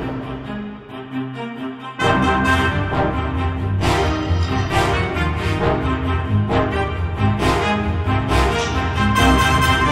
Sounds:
music, background music

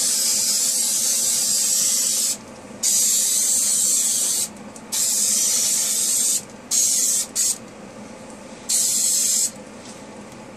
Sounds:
spray

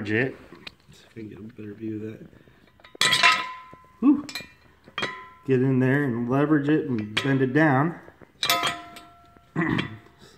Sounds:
speech

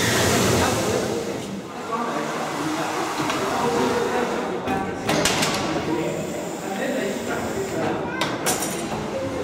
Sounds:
steam

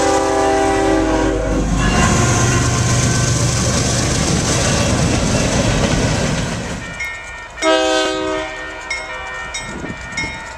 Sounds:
train, rail transport, clickety-clack, train horn, train wagon

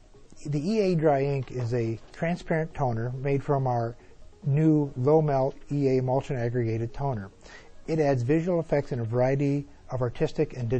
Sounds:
music, speech

